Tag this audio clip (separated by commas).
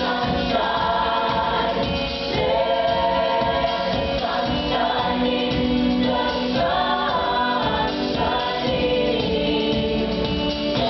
Music, A capella